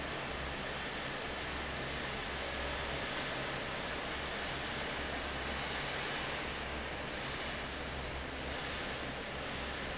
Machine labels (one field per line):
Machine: fan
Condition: normal